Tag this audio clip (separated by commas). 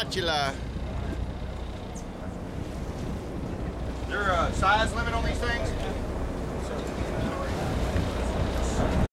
Speech